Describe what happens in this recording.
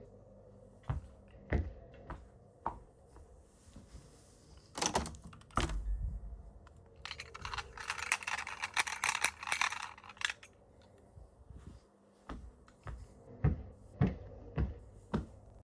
I walk across the room toward the window, open it, and briefly shake a set of keys in my hand. After that, I continue walking for a few more steps.